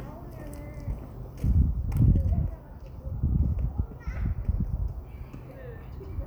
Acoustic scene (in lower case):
residential area